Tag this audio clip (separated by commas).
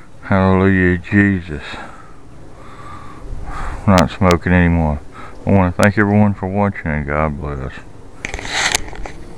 outside, rural or natural, Speech